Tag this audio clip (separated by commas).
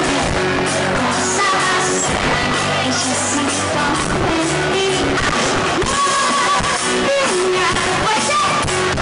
Music